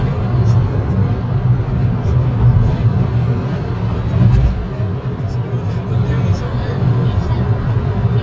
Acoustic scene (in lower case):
car